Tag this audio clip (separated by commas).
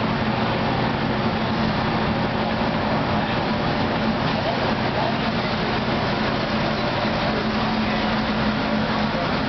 Speech